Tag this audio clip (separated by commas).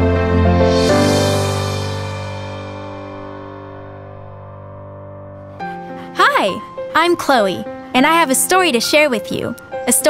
Speech, Music